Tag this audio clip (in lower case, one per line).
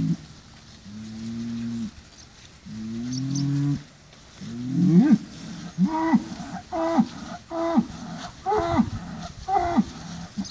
bull bellowing